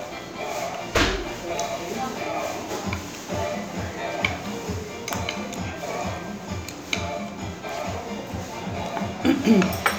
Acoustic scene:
restaurant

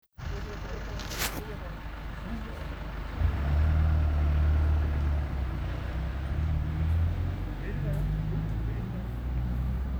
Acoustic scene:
residential area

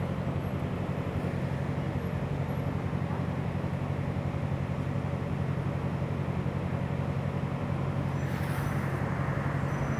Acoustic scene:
street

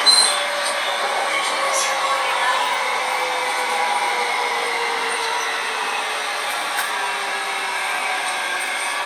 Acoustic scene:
subway train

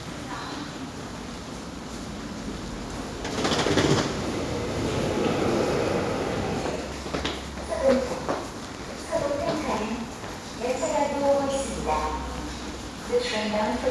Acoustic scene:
subway station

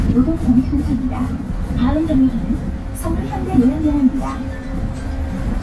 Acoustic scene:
bus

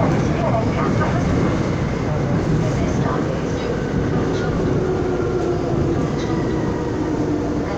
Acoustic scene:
subway train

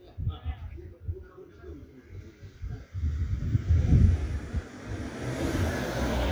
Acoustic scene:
residential area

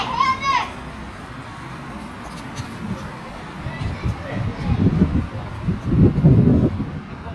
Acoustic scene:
residential area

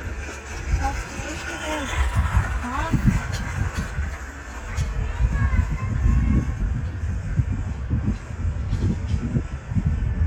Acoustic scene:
residential area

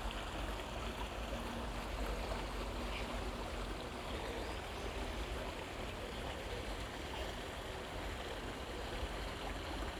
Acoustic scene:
park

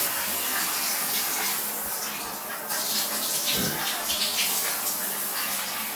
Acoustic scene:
restroom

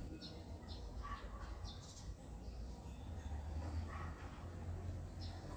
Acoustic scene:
residential area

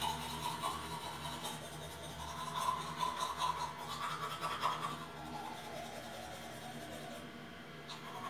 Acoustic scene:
restroom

